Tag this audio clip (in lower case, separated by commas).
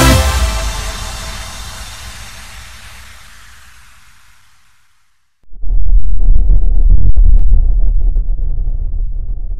music, silence